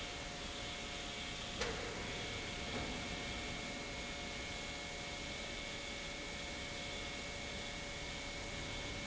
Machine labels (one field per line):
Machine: pump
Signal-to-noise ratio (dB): 0 dB